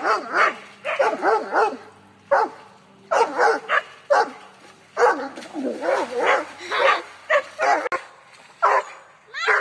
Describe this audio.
Two dogs growling and barking at something